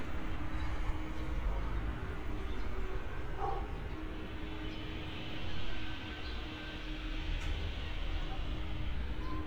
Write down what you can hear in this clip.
unidentified human voice, dog barking or whining